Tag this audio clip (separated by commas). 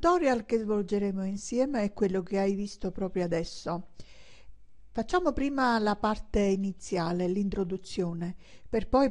Speech